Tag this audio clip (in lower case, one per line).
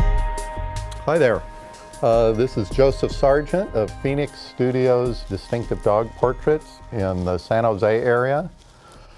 music
speech